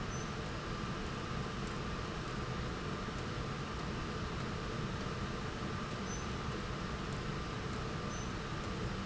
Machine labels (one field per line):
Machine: slide rail